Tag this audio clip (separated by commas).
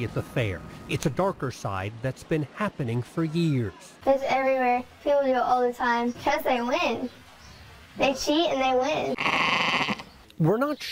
Speech